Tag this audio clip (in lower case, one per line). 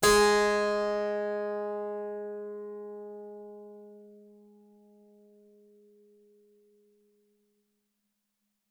music
musical instrument
keyboard (musical)